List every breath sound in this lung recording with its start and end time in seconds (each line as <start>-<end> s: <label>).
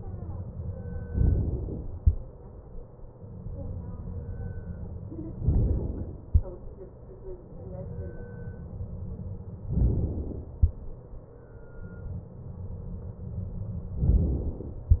1.03-1.96 s: inhalation
3.52-5.38 s: exhalation
5.40-6.43 s: inhalation
7.84-9.70 s: exhalation
9.72-10.74 s: inhalation
12.25-14.02 s: exhalation
14.11-15.00 s: inhalation